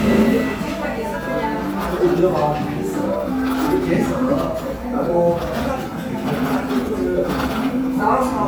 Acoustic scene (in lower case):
cafe